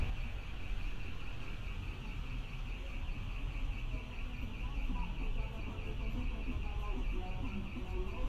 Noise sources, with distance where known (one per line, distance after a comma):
unidentified alert signal, far
music from an unclear source